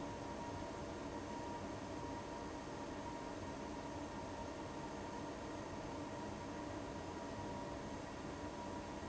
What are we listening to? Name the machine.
fan